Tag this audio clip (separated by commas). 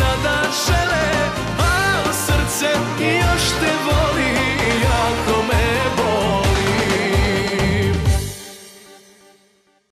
Music